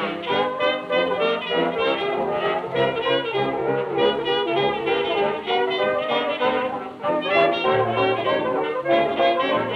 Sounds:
Music

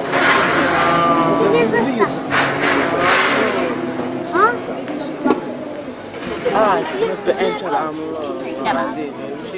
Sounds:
Speech

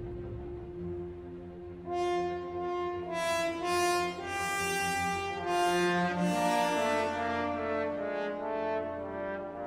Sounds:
Orchestra, Classical music, Music, Musical instrument, Cello, French horn, Brass instrument

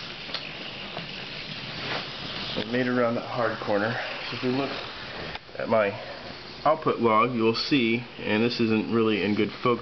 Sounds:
inside a small room, Speech

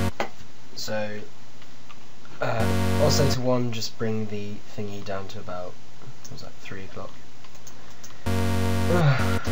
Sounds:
Speech, Music, Electronic music

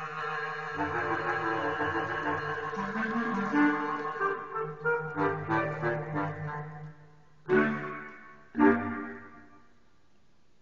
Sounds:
Musical instrument, Music

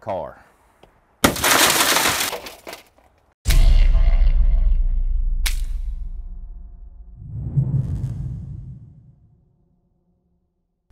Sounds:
outside, urban or man-made, Speech

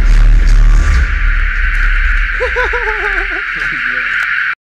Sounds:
Speech, Music

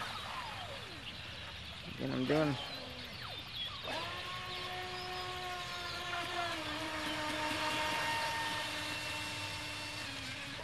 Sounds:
Speech

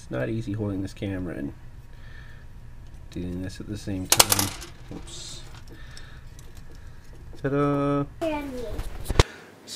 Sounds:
Speech

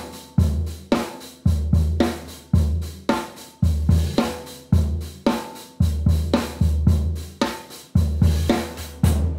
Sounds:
playing cymbal

